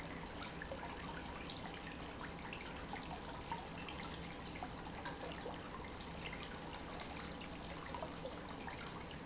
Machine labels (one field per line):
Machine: pump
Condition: normal